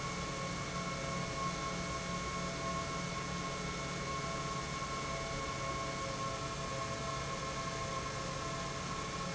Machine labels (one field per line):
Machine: pump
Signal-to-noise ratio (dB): -6 dB